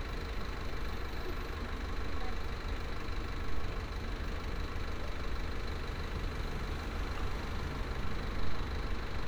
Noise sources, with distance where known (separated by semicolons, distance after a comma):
large-sounding engine